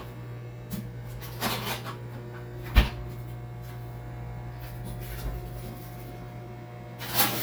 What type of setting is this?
kitchen